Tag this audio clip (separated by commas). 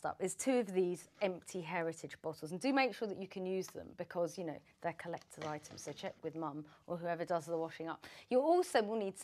Speech